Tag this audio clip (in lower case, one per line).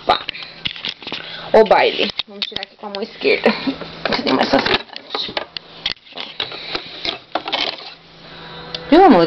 speech